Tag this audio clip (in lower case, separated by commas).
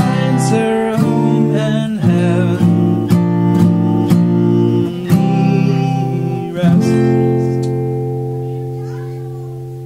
plucked string instrument, guitar, musical instrument, singing, music